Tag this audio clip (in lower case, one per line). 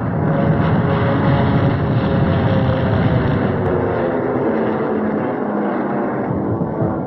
fixed-wing aircraft
vehicle
aircraft